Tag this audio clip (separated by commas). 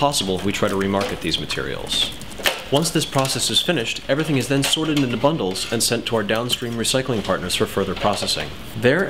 Speech